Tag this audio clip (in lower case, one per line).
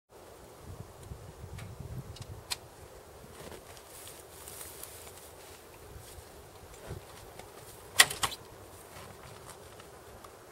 outside, rural or natural
motorcycle
vehicle